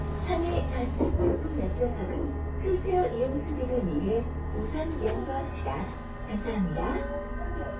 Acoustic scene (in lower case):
bus